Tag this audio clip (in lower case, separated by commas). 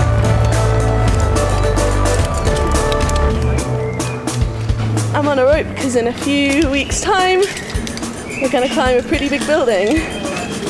speech, music